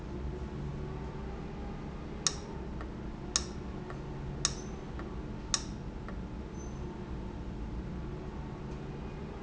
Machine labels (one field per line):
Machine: valve